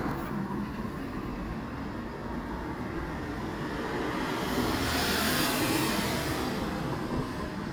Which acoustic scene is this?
residential area